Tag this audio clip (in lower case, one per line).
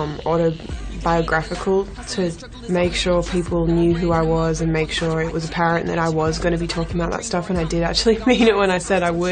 speech
music